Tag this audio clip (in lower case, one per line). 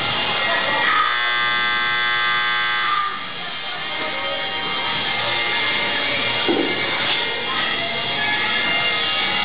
music
speech
outside, urban or man-made